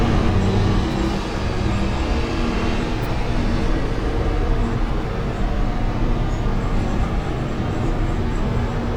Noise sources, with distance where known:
engine of unclear size

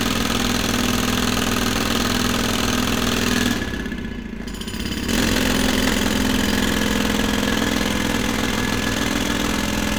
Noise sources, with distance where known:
unidentified impact machinery

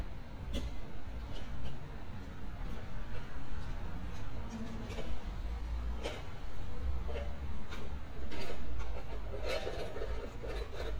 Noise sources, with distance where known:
non-machinery impact, near

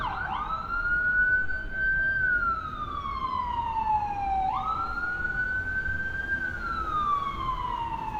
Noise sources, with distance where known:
siren, near

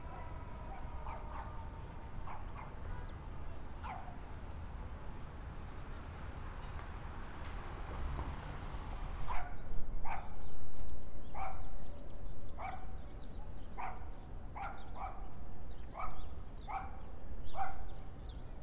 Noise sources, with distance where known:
dog barking or whining, far

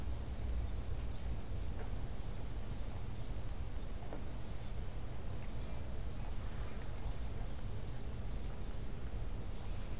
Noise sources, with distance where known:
background noise

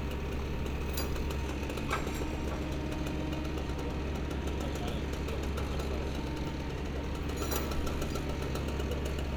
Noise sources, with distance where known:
engine of unclear size, near
unidentified human voice

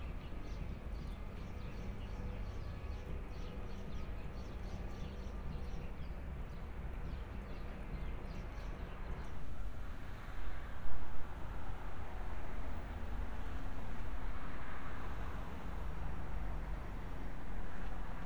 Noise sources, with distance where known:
background noise

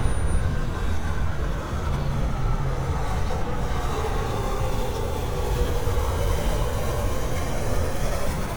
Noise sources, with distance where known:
engine of unclear size, near

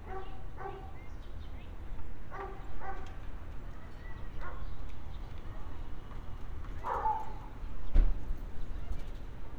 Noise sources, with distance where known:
dog barking or whining

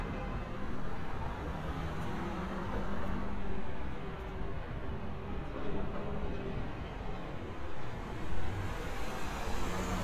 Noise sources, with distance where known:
medium-sounding engine
car horn, far

